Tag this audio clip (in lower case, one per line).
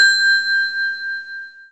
bell
ringtone
alarm
telephone